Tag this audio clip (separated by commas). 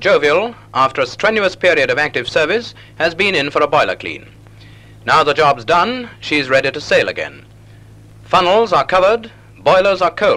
Speech